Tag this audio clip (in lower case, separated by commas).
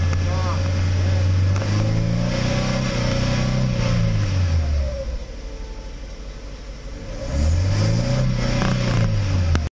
revving, engine, vehicle, medium engine (mid frequency), car